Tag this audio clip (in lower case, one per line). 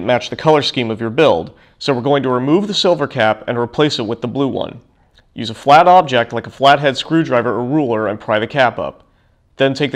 speech